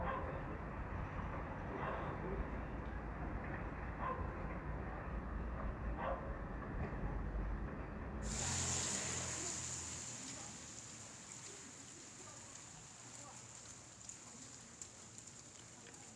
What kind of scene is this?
residential area